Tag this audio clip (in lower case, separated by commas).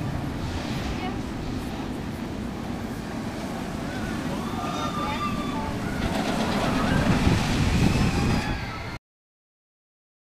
outside, urban or man-made, speech